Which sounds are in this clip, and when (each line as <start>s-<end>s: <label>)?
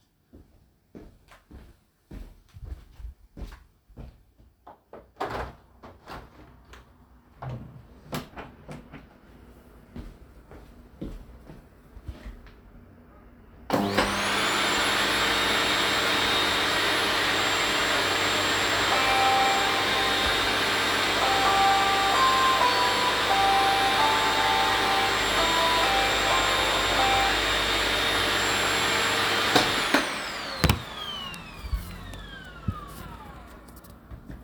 0.2s-5.1s: footsteps
4.7s-9.2s: window
9.9s-12.7s: footsteps
13.7s-33.5s: vacuum cleaner
18.9s-27.6s: phone ringing